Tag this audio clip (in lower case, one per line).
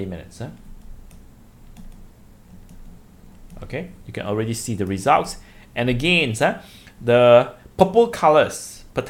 speech